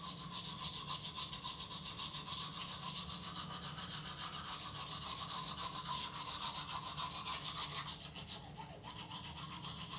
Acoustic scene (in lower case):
restroom